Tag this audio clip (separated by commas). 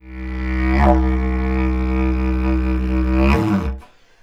Music, Musical instrument